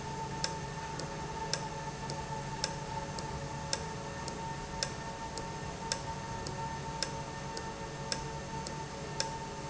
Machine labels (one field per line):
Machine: valve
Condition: normal